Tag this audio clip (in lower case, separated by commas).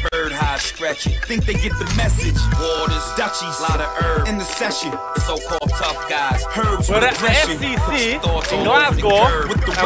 rhythm and blues, music